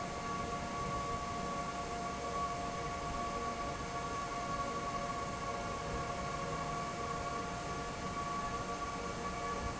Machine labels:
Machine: fan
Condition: normal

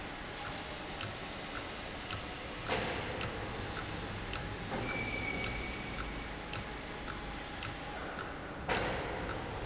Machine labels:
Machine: valve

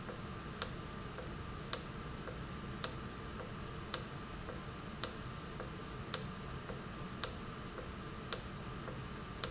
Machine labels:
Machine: valve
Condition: normal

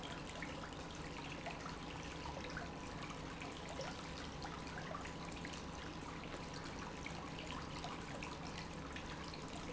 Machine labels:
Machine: pump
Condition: normal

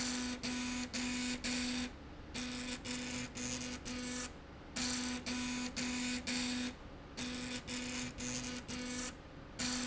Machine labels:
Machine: slide rail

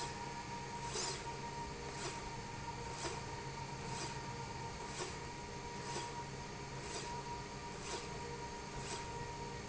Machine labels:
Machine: slide rail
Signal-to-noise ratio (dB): 0 dB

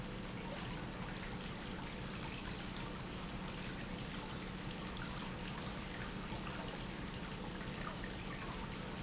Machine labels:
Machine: pump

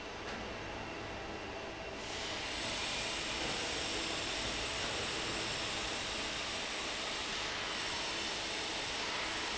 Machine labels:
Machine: fan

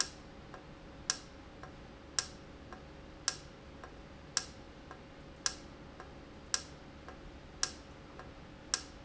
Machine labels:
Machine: valve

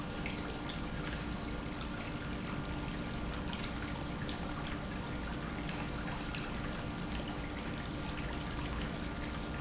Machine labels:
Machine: pump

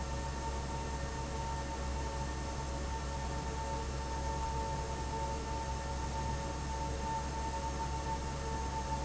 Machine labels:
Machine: fan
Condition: abnormal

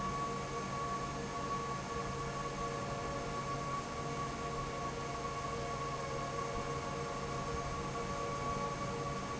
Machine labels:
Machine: fan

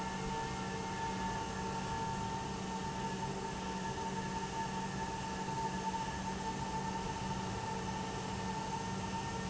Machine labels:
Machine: pump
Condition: normal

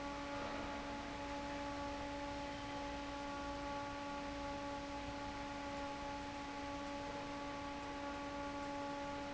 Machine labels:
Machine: fan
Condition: normal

